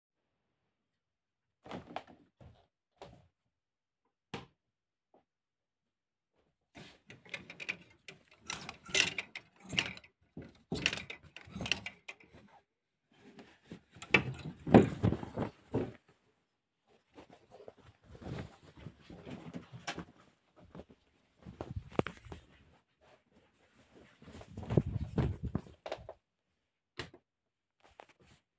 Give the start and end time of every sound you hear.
[1.60, 3.62] footsteps
[4.27, 4.55] light switch
[26.96, 27.29] light switch

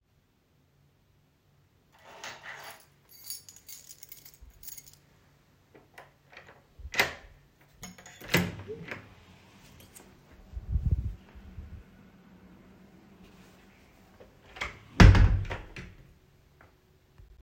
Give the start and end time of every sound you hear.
[3.03, 6.37] keys
[6.28, 9.88] door
[14.38, 16.41] door

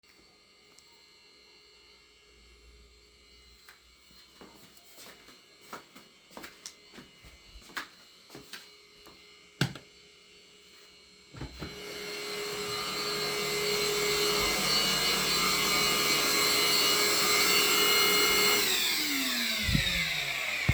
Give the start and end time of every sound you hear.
[0.00, 20.74] vacuum cleaner
[3.65, 9.12] footsteps
[9.55, 9.88] door
[11.35, 11.73] door

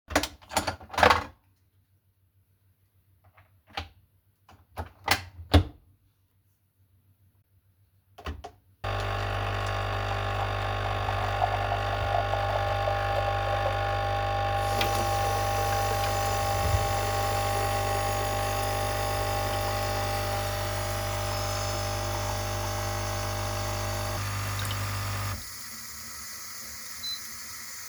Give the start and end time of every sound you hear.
[0.01, 1.76] coffee machine
[3.48, 6.04] coffee machine
[8.08, 27.89] coffee machine
[14.47, 27.89] running water

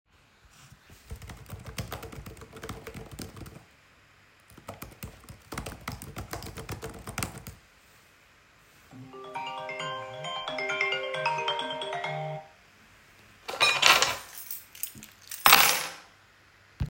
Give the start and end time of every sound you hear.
[1.05, 3.64] keyboard typing
[4.51, 7.64] keyboard typing
[8.92, 12.51] phone ringing
[13.46, 16.08] keys

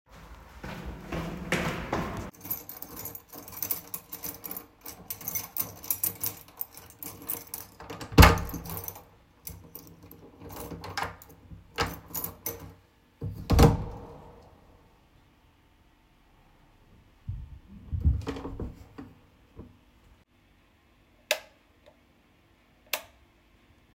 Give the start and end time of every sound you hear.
[0.64, 2.45] footsteps
[2.39, 13.36] keys
[7.92, 8.76] door
[10.47, 11.17] door
[11.74, 12.60] door
[13.21, 14.11] door
[16.96, 19.13] door
[17.27, 19.06] footsteps
[21.24, 21.55] light switch
[22.84, 23.13] light switch

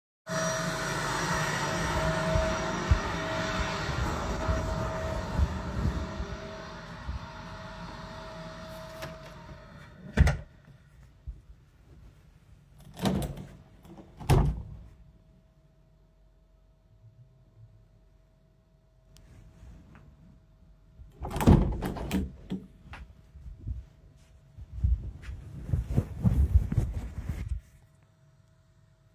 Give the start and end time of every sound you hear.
[0.00, 29.14] vacuum cleaner
[2.27, 7.61] footsteps
[8.40, 10.54] door
[9.47, 14.95] window
[21.04, 27.64] window

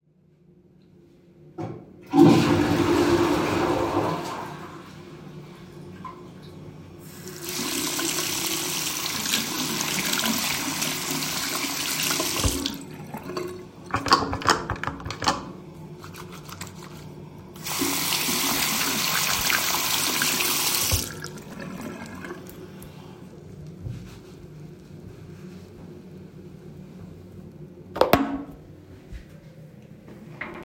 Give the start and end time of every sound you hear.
[1.66, 5.77] toilet flushing
[7.15, 14.02] running water
[17.54, 22.56] running water

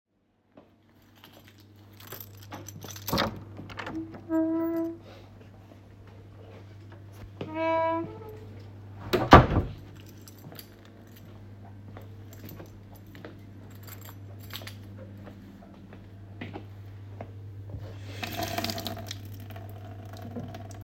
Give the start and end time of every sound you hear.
[1.22, 3.32] keys
[3.35, 5.14] door
[7.31, 9.95] door
[10.01, 15.23] keys
[10.03, 18.00] footsteps
[18.13, 20.84] running water

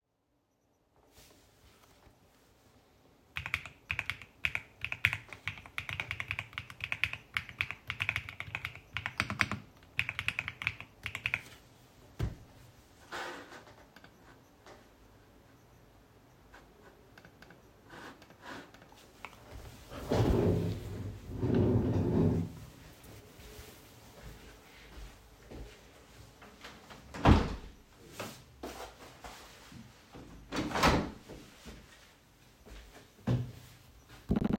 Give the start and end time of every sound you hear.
[3.12, 11.82] keyboard typing
[23.99, 27.37] footsteps
[26.91, 31.53] window

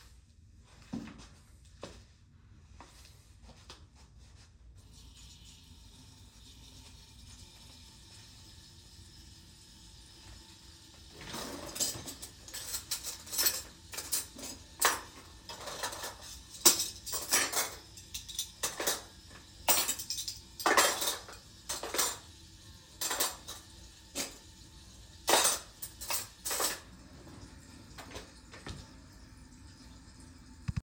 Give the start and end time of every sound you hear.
[0.76, 4.40] footsteps
[4.77, 30.82] running water
[11.31, 11.79] wardrobe or drawer
[11.48, 26.87] cutlery and dishes

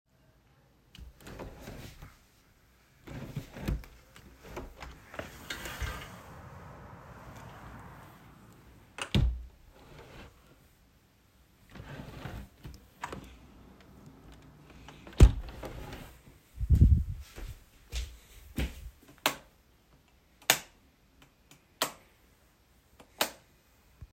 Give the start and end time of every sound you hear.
[0.64, 6.42] footsteps
[8.59, 10.77] window
[11.49, 13.82] footsteps
[14.53, 16.39] window
[19.03, 23.95] light switch

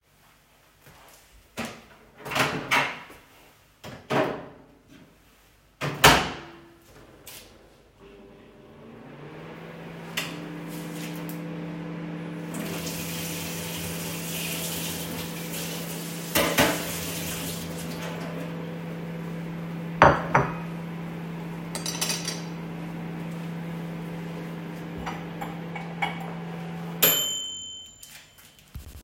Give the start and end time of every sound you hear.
[8.62, 27.03] microwave
[12.51, 18.49] running water
[16.23, 16.91] cutlery and dishes
[19.93, 20.68] cutlery and dishes
[21.66, 22.66] cutlery and dishes
[25.41, 26.78] cutlery and dishes

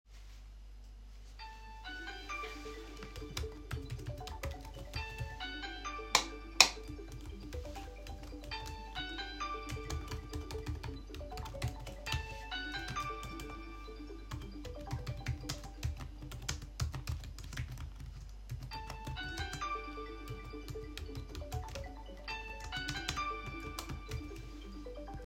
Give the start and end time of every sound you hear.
[1.45, 16.09] phone ringing
[3.09, 6.15] keyboard typing
[6.08, 6.37] light switch
[6.53, 6.82] light switch
[7.05, 24.55] keyboard typing
[18.63, 25.26] phone ringing

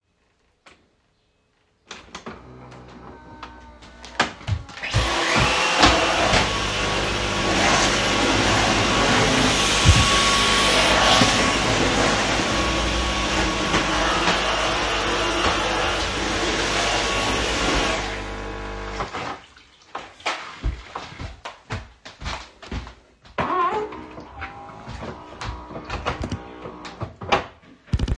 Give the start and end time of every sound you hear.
[1.85, 19.75] coffee machine
[4.70, 18.45] vacuum cleaner
[5.44, 6.99] footsteps
[19.85, 23.08] footsteps
[23.27, 27.58] coffee machine
[24.59, 27.16] footsteps

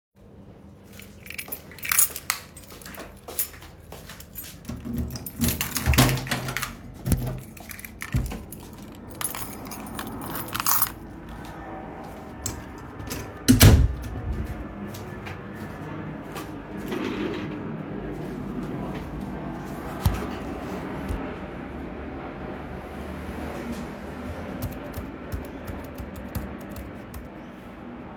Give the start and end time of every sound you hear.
[0.87, 3.70] keys
[1.40, 4.63] footsteps
[4.28, 8.82] keys
[4.62, 8.61] door
[9.03, 11.00] keys
[12.41, 14.01] door
[14.84, 16.74] footsteps
[24.58, 27.39] keyboard typing

